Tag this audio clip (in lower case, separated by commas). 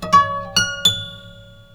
musical instrument, music, guitar, plucked string instrument